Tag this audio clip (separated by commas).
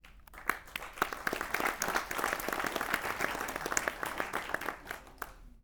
Human group actions, Applause